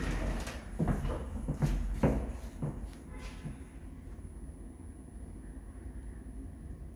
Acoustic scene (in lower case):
elevator